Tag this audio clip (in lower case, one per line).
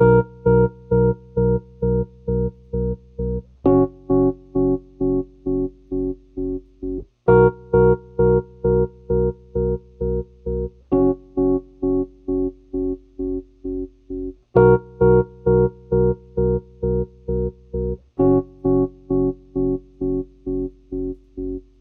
keyboard (musical)
piano
music
musical instrument